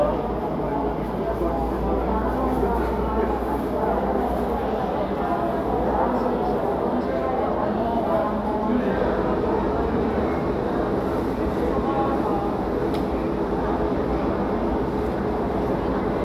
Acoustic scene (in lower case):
crowded indoor space